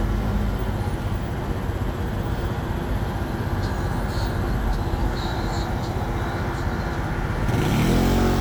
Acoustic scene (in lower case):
street